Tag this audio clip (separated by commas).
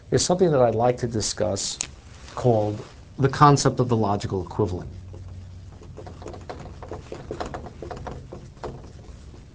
Speech